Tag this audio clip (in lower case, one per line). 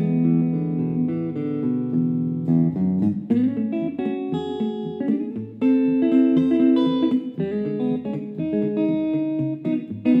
bass guitar
plucked string instrument
music
musical instrument